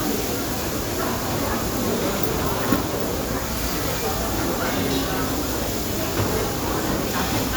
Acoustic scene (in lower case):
restaurant